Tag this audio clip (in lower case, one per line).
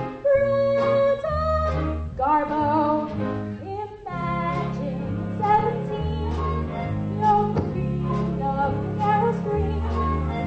opera